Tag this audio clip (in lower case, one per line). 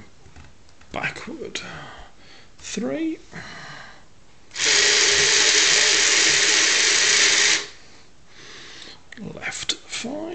male speech
speech
monologue